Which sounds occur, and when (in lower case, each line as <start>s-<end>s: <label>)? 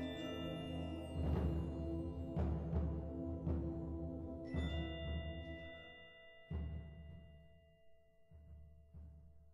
0.0s-9.5s: music